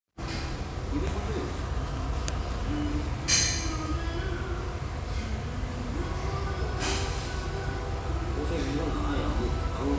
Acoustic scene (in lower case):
restaurant